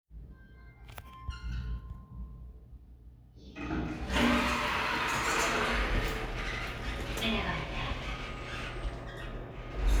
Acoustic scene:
elevator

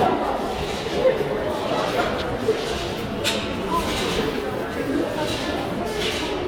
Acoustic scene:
crowded indoor space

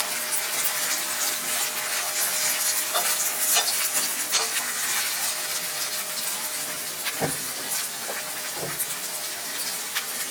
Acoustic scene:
kitchen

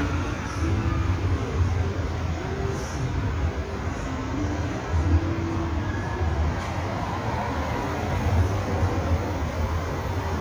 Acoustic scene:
street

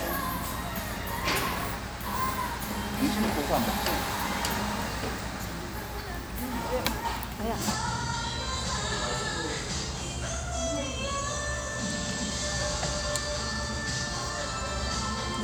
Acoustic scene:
restaurant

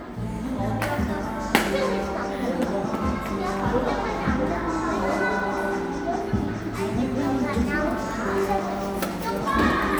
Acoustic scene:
cafe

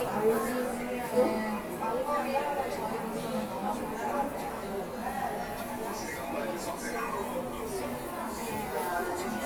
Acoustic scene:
subway station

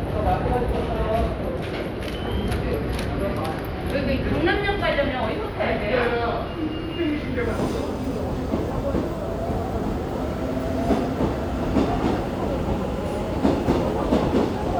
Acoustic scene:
subway station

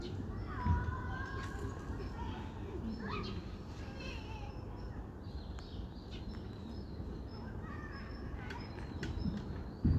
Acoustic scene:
residential area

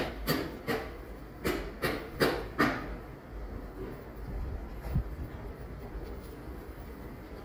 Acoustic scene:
residential area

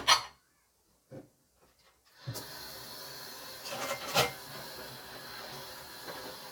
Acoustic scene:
kitchen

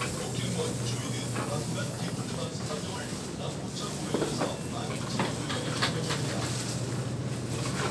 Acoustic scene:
crowded indoor space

